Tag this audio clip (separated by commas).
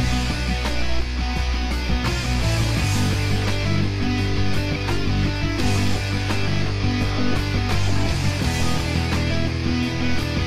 Music, Heavy metal